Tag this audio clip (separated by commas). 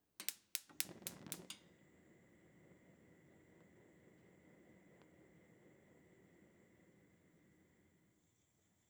Fire